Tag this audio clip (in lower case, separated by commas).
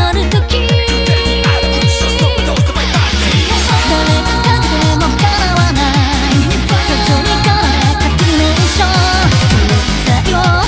music